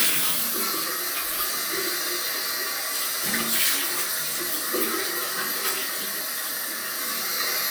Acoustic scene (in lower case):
restroom